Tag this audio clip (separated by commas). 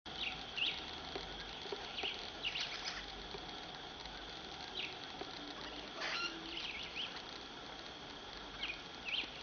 Bird